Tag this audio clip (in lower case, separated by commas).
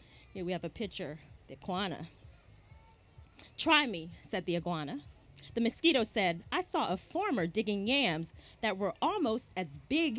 speech